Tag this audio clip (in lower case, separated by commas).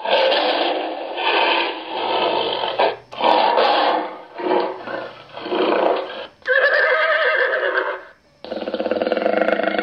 inside a small room